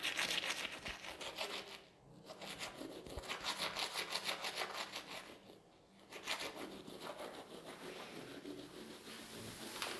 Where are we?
in a restroom